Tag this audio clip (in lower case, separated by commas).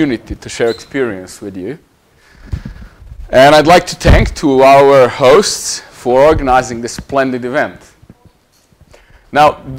speech